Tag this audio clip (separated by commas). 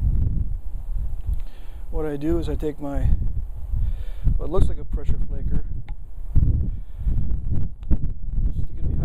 Speech